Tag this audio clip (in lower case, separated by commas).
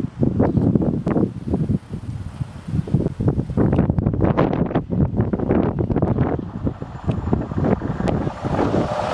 wind noise (microphone), wind